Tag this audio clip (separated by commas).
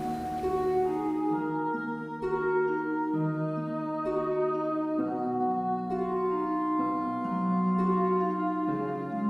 Bowed string instrument, Violin